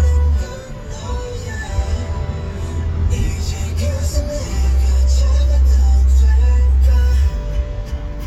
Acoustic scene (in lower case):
car